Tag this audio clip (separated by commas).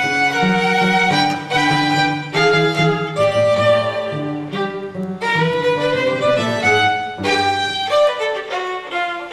playing cello, fiddle, Cello, Bowed string instrument